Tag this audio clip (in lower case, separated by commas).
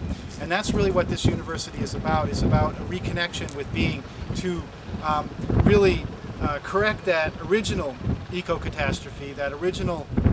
speech